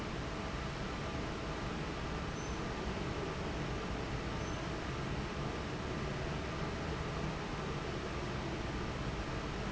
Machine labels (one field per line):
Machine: fan